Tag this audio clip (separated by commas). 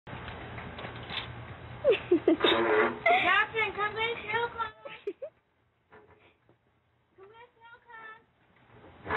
inside a small room, Speech